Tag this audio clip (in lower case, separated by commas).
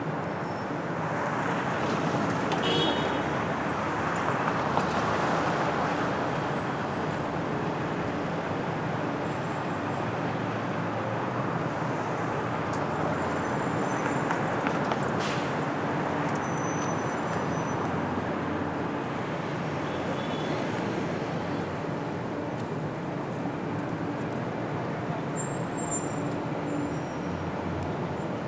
car, motor vehicle (road), alarm, traffic noise, vehicle, honking